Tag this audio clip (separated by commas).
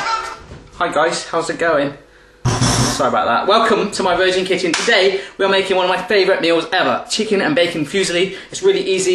Speech, Music